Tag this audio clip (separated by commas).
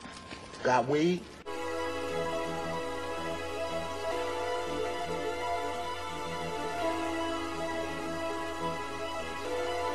Speech, Music